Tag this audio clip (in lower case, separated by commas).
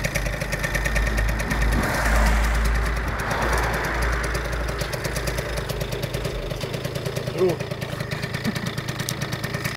speech